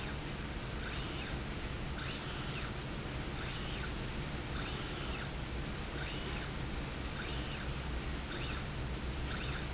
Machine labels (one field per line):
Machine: slide rail